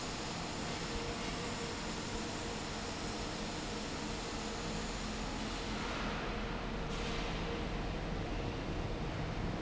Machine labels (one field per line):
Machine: fan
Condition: normal